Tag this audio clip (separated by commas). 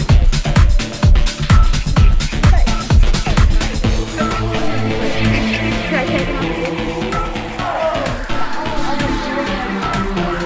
Music, Dog, Speech